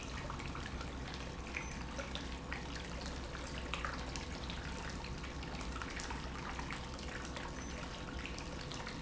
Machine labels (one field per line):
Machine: pump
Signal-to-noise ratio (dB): 0 dB